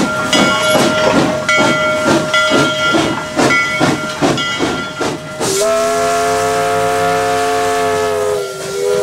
A train blows its whistle as a bell rings